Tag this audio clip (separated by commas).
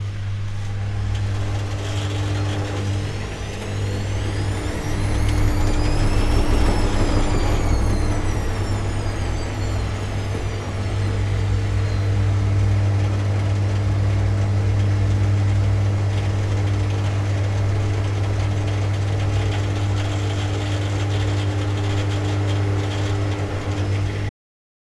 Engine